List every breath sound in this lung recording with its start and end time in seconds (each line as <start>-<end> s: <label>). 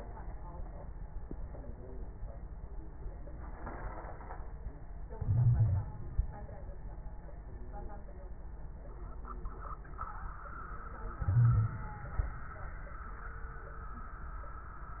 5.14-6.03 s: inhalation
5.24-5.87 s: wheeze
11.21-11.82 s: wheeze
11.21-12.00 s: inhalation